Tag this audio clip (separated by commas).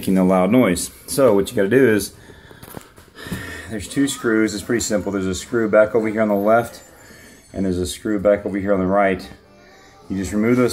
Speech